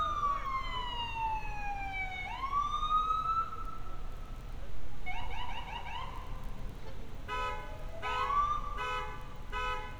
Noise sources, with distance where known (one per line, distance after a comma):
car alarm, near
siren, near